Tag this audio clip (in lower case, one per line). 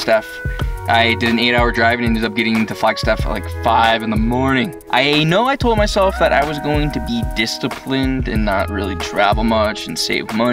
speech
tender music
soundtrack music
music